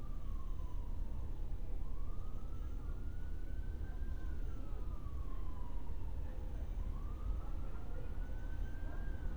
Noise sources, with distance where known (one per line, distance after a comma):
siren
person or small group talking